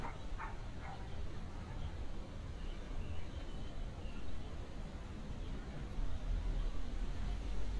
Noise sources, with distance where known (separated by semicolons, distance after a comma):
dog barking or whining, far